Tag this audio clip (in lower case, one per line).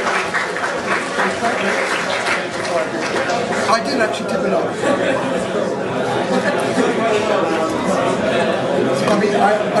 speech